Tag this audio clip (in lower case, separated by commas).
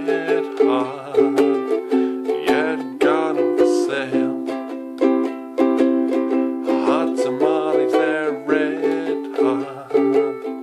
playing ukulele